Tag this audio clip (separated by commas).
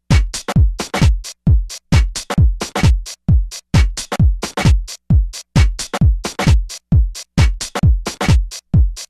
Music